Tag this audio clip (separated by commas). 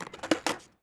Vehicle, Skateboard